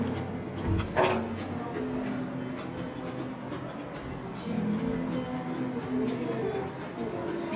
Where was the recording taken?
in a restaurant